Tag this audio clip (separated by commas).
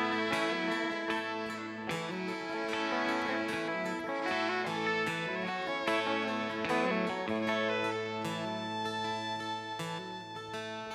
Music